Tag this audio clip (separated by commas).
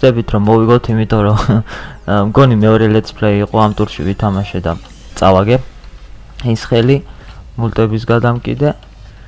Speech, Music